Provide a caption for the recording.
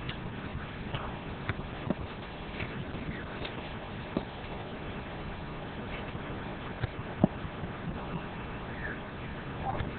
A rhythmic clip-clop sound is present